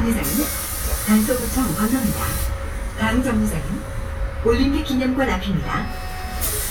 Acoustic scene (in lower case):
bus